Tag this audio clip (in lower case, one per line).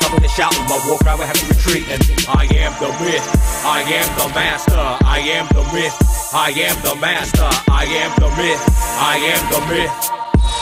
music